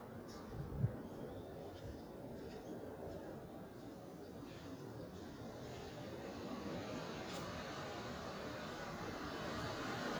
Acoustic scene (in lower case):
residential area